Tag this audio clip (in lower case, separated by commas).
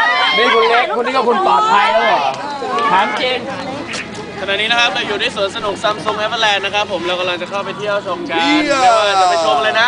speech